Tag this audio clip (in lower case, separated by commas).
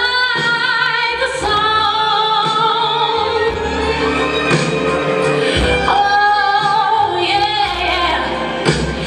female singing, music